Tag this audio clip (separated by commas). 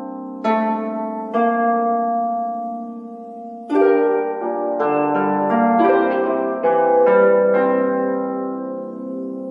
Music